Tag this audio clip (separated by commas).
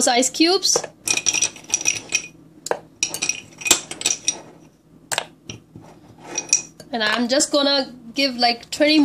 Speech